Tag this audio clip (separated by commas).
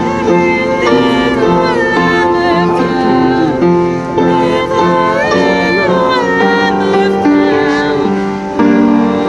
Female singing, Male singing, Music